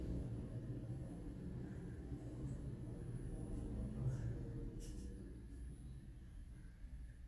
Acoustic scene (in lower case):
elevator